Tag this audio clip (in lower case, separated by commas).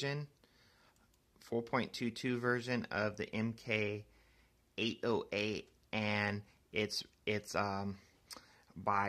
speech